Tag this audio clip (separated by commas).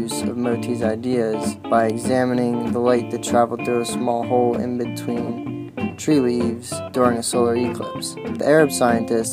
Music, Speech